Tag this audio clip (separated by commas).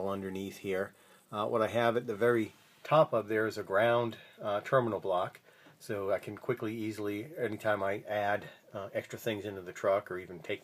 Speech